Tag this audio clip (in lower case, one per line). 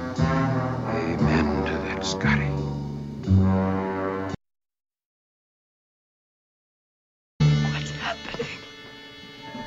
music
speech